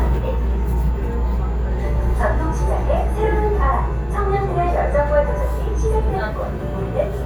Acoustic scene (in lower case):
subway train